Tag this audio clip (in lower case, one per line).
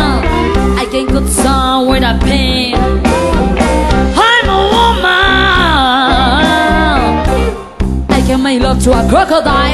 guitar
music
musical instrument
blues